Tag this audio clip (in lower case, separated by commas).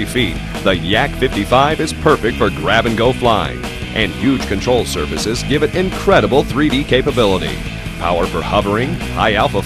music, speech